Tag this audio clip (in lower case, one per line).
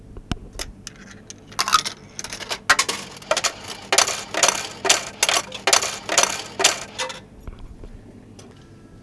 coin (dropping)
domestic sounds